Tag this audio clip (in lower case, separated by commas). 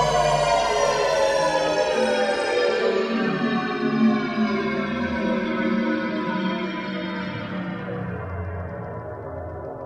music, theremin